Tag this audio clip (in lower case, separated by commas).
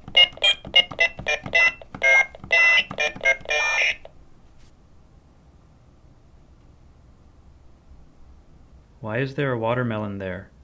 speech